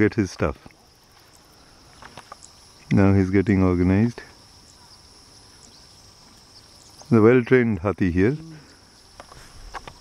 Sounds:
Animal, Speech

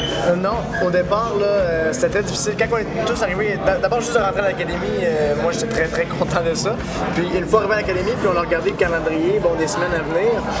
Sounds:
Speech, Music

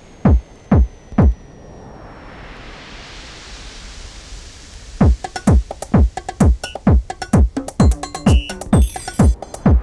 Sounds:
Music

